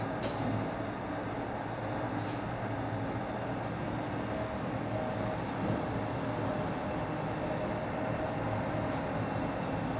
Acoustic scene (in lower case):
elevator